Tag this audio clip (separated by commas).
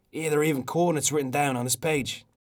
Speech, Human voice